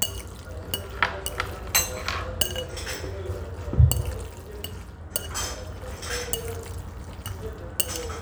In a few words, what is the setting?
restaurant